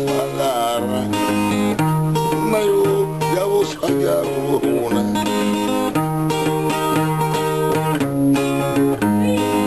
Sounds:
Musical instrument, Acoustic guitar, Music, Guitar, Plucked string instrument

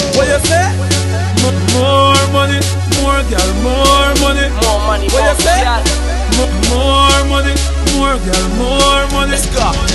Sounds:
Music

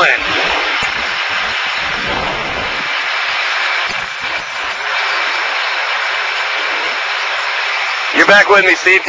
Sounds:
Speech

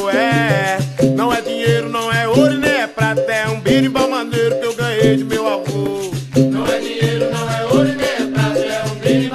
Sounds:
Salsa music

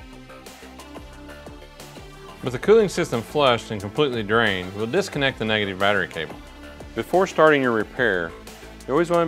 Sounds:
Music, Speech

